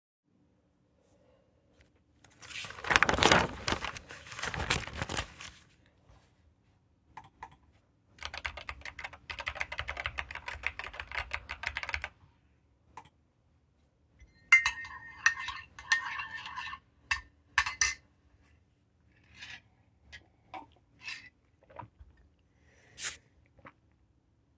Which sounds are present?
keyboard typing, cutlery and dishes